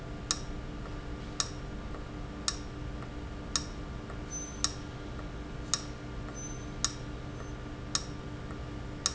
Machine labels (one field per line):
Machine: valve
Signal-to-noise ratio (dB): -6 dB